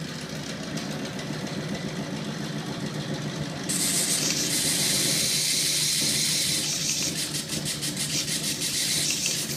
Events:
[0.00, 9.55] engine
[3.66, 9.55] filing (rasp)

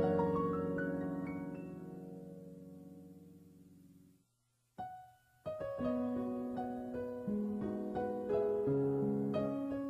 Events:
[0.00, 4.20] music
[0.00, 9.85] background noise
[4.76, 9.85] music

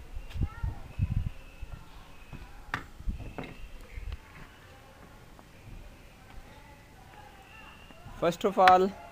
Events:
[0.00, 9.11] wind
[0.11, 0.42] wind noise (microphone)
[0.13, 0.63] bird call
[0.26, 0.40] surface contact
[0.30, 0.88] kid speaking
[0.54, 1.25] wind noise (microphone)
[0.76, 1.75] bird call
[2.02, 2.56] bird call
[2.27, 2.39] generic impact sounds
[2.35, 3.00] human voice
[2.69, 2.78] generic impact sounds
[3.06, 3.58] wind noise (microphone)
[3.08, 3.72] bird call
[3.31, 3.49] generic impact sounds
[3.72, 5.36] human voice
[3.78, 3.90] tick
[3.82, 4.14] wind noise (microphone)
[3.82, 4.49] bird call
[4.07, 4.15] tick
[4.30, 4.42] generic impact sounds
[4.53, 4.74] surface contact
[4.96, 5.04] generic impact sounds
[5.34, 5.42] generic impact sounds
[5.38, 6.24] bird call
[5.45, 5.88] wind noise (microphone)
[5.47, 6.85] human voice
[6.23, 6.34] generic impact sounds
[6.39, 6.87] bird call
[6.95, 7.78] human voice
[7.08, 8.02] bird call
[7.08, 7.20] generic impact sounds
[7.78, 7.94] generic impact sounds
[7.97, 9.11] human voice
[8.18, 8.89] male speech
[8.62, 8.72] hammer
[8.80, 9.11] bird call

